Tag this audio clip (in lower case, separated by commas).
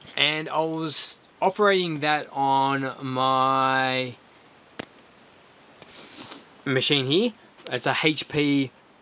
speech